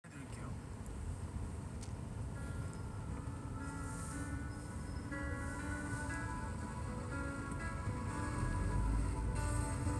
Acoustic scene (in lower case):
car